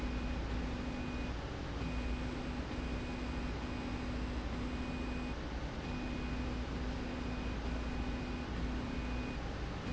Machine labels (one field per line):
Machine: slide rail